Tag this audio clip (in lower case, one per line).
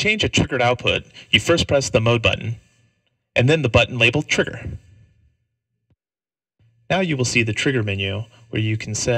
speech
monologue